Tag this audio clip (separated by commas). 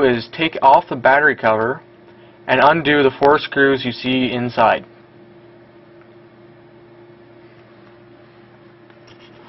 Speech